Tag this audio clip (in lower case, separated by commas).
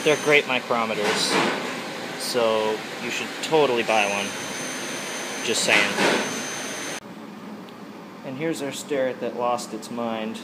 tools, speech, steam